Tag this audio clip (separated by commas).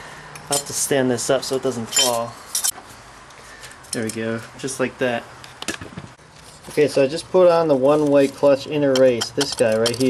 Speech, inside a small room